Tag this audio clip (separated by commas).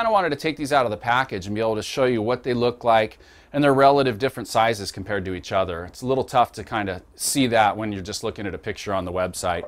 Speech